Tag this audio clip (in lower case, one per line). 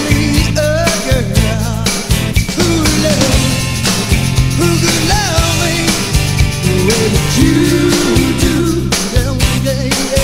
music